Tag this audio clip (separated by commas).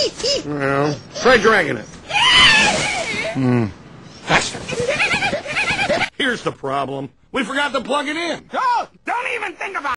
Speech